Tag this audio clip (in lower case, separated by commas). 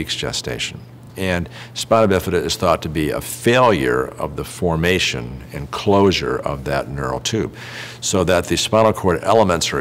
speech